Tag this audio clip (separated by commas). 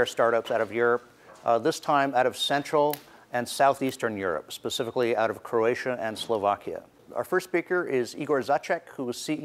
Speech